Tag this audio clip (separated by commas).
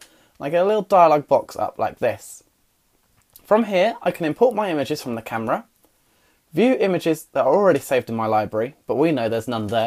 Speech